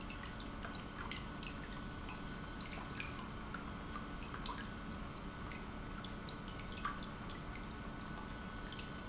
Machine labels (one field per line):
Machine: pump